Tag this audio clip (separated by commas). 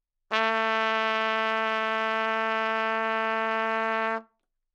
Trumpet, Musical instrument, Brass instrument, Music